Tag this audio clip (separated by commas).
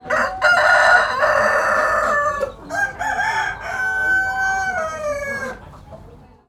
Fowl, Animal, Chicken, livestock